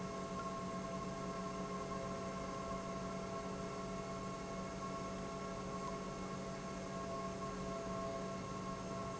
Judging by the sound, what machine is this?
pump